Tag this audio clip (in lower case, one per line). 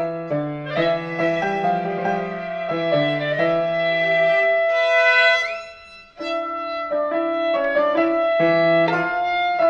violin
music
musical instrument